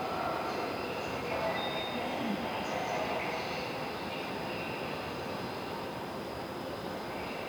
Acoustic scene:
subway station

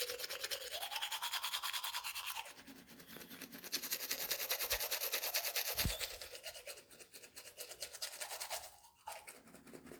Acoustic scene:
restroom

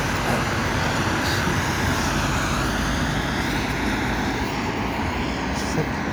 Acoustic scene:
street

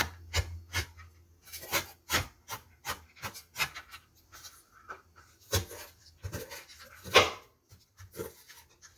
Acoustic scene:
kitchen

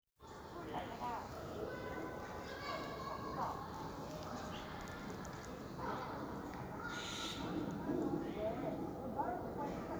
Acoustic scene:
park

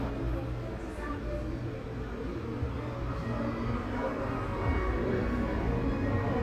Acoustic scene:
cafe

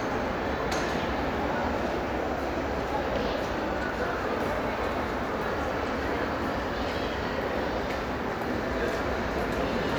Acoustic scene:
crowded indoor space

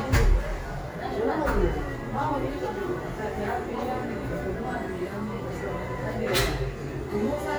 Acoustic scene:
cafe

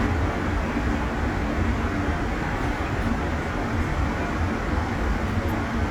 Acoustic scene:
subway station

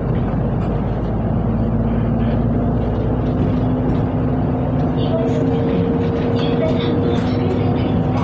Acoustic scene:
bus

